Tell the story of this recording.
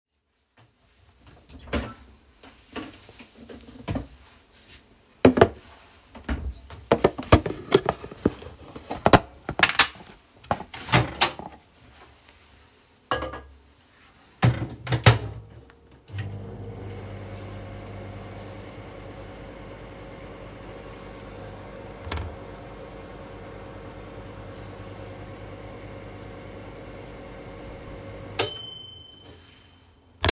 I open the fridge and take a plastic container, put it in the microwave and turn it on